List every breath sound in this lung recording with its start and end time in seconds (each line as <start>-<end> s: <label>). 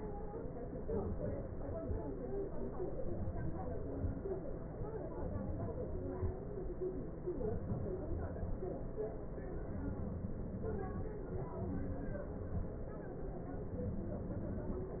0.89-1.52 s: inhalation
1.62-1.94 s: exhalation
3.06-3.66 s: inhalation
3.81-4.26 s: exhalation
5.23-5.88 s: inhalation
6.03-6.38 s: exhalation